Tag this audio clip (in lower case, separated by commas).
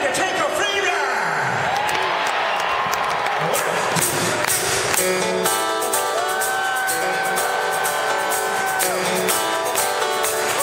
speech, music